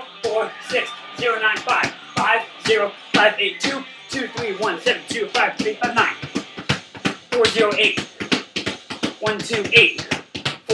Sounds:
speech
inside a small room

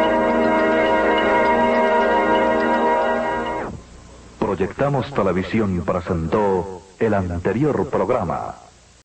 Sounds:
music
television
speech

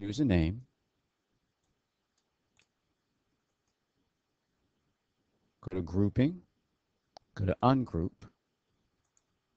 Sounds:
speech

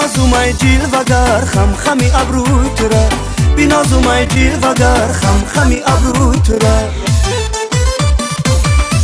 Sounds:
music

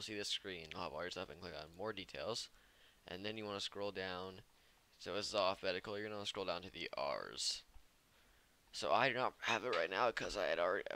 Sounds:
speech

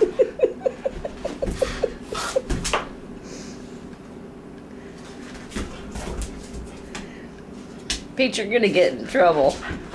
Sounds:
dog
domestic animals
speech
animal
inside a small room

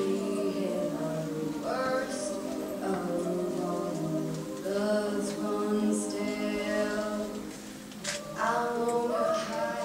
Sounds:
singing
music
choir

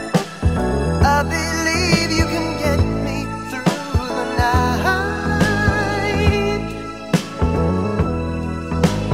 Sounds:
saxophone
rhythm and blues
soul music
singing
music

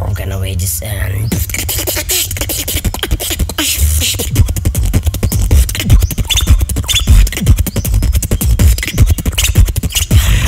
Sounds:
beat boxing

